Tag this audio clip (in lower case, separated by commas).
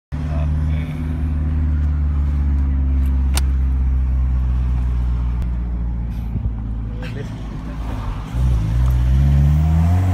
speech, vehicle, outside, urban or man-made, car